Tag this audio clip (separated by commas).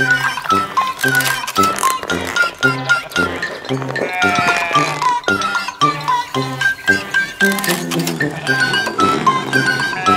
Sheep, Music, Bleat